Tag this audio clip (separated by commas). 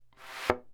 Thump